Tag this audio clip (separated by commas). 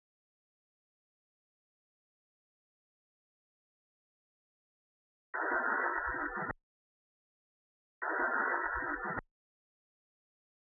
Silence, outside, rural or natural